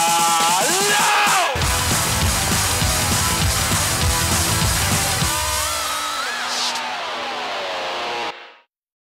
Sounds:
Music, outside, urban or man-made

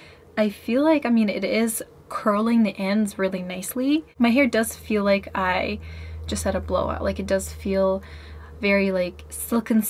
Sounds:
hair dryer drying

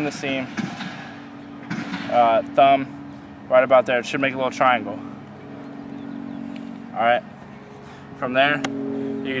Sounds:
Speech

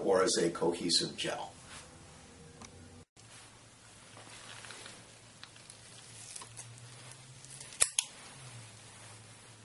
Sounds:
Speech, inside a small room

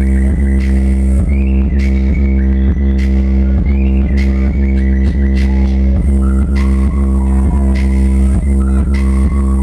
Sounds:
Speech, Music, Funk

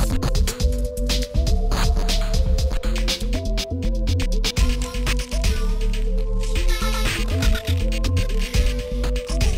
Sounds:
Music

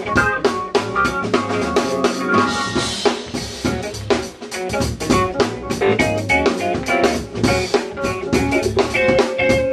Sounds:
Music

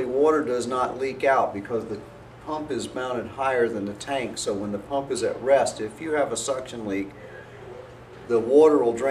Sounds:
Speech

